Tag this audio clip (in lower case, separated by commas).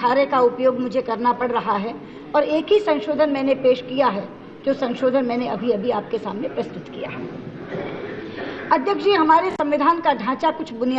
female speech, speech